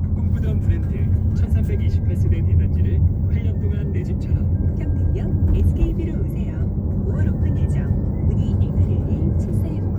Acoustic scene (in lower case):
car